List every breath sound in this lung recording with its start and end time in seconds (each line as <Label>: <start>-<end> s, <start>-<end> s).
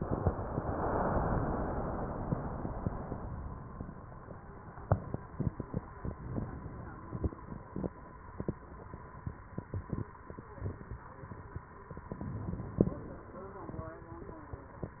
Inhalation: 6.04-7.42 s, 12.06-13.43 s